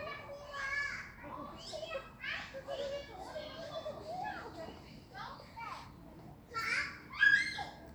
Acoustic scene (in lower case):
park